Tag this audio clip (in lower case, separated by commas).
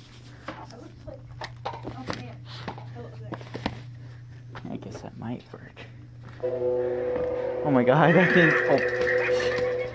speech